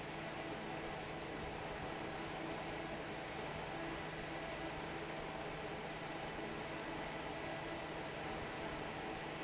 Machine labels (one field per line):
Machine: fan